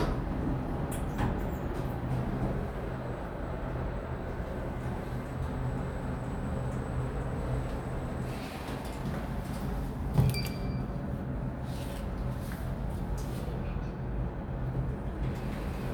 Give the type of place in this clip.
elevator